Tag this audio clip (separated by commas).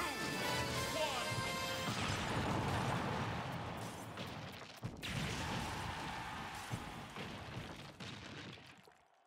Speech